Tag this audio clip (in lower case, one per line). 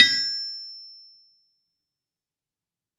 tools